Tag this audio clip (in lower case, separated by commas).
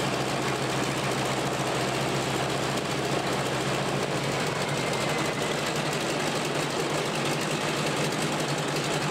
vehicle, engine, idling